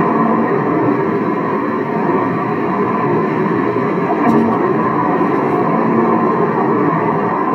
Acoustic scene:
car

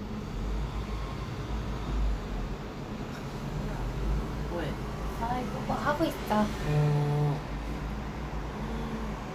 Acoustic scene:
street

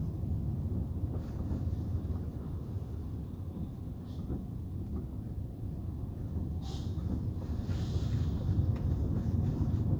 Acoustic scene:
car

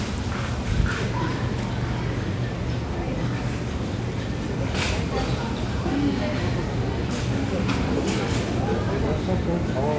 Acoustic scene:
crowded indoor space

